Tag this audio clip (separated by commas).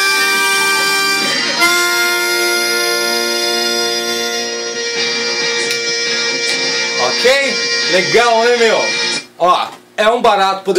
playing bagpipes